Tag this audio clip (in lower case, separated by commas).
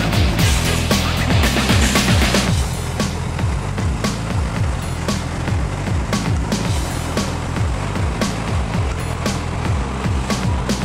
truck, vehicle, music